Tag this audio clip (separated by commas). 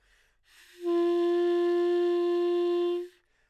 Musical instrument, Wind instrument, Music